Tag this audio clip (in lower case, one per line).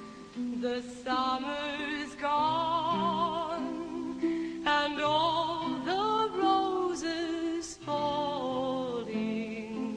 female singing
music